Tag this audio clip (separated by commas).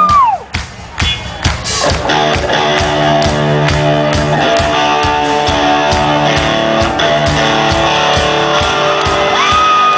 Music, Guitar, Musical instrument, Bass guitar, Electric guitar